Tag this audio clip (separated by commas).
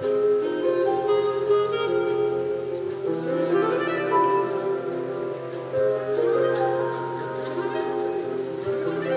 Music